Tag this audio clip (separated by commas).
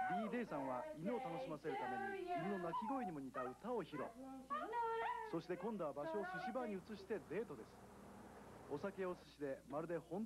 Female singing, Speech, Bow-wow